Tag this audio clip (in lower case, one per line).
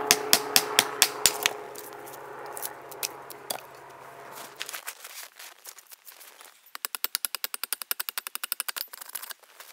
tools